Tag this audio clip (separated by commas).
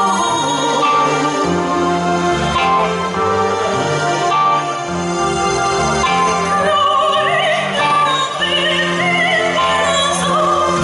Music, Singing, Opera